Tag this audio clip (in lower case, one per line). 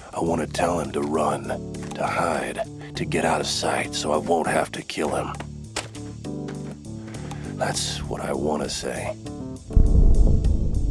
music
speech